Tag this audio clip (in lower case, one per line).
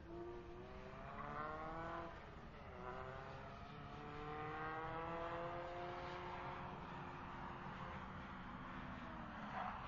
skidding